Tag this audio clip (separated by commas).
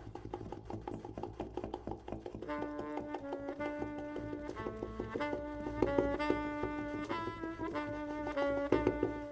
Musical instrument, Saxophone, Music